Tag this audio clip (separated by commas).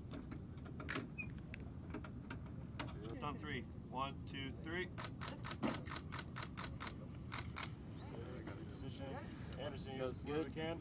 Speech, outside, urban or man-made